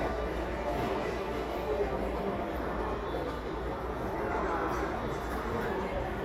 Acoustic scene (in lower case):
subway station